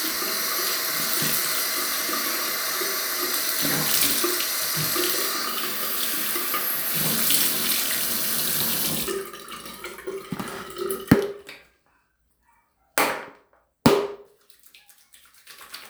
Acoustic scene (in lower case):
restroom